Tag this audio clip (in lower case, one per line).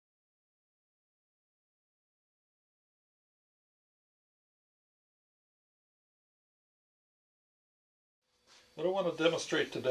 speech